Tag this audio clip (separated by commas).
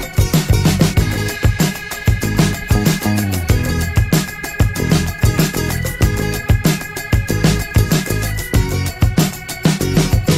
Music